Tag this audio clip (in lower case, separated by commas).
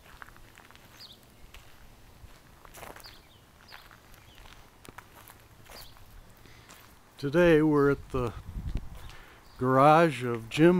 walk, speech